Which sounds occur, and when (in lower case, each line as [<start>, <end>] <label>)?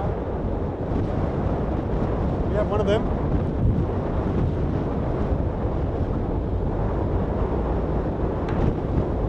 [0.00, 9.25] ocean
[0.00, 9.25] ship
[0.00, 9.25] wind noise (microphone)
[2.39, 3.04] male speech
[8.42, 8.70] generic impact sounds